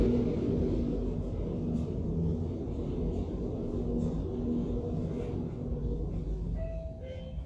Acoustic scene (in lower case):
elevator